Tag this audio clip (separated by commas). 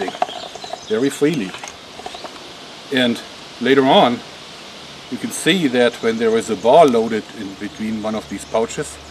outside, rural or natural, Speech